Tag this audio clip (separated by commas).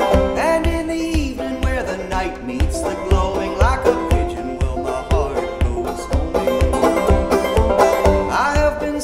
Music, playing banjo, Banjo